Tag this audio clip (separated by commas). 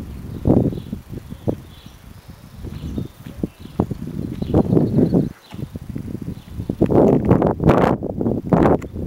Wind noise (microphone), Wind